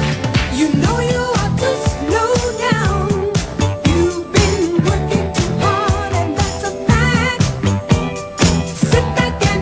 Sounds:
disco

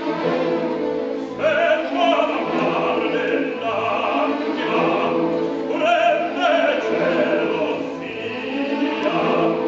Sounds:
opera, music

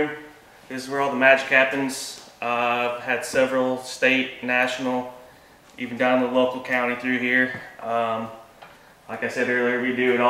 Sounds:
speech

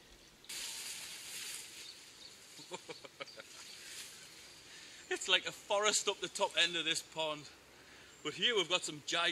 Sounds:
speech, outside, rural or natural

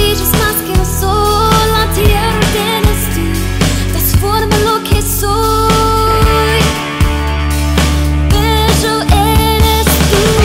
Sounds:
rhythm and blues, music

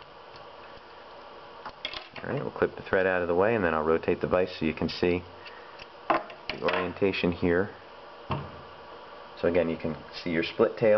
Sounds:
speech

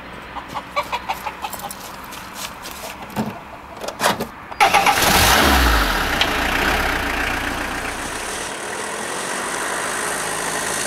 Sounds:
motor vehicle (road), vehicle, car

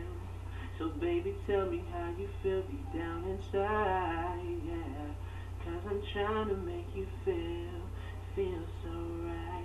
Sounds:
male singing

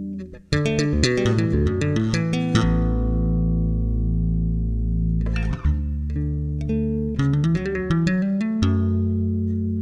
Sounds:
guitar, bass guitar, music

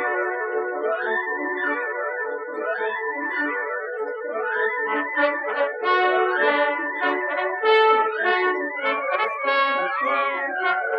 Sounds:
trombone

